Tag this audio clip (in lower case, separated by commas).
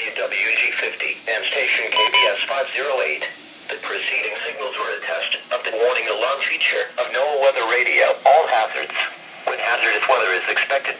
speech, radio